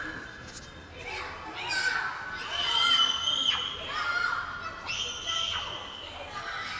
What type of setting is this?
park